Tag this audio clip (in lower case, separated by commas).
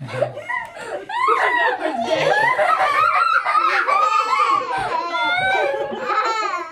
giggle, laughter, human voice